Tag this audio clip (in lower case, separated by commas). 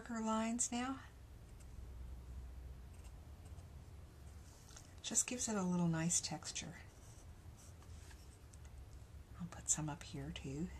speech, writing, inside a small room